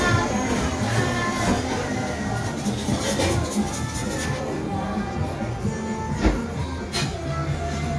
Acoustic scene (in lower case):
cafe